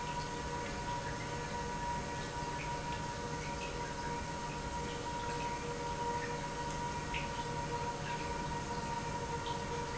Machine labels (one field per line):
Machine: pump